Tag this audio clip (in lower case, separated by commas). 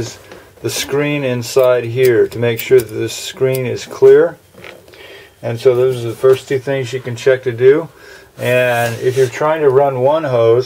speech